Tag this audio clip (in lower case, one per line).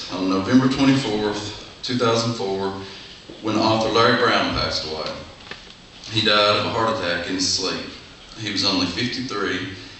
speech